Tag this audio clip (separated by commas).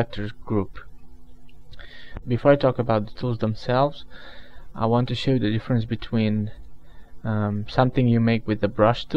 Speech